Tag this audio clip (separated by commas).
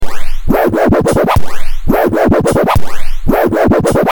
Scratching (performance technique), Music, Musical instrument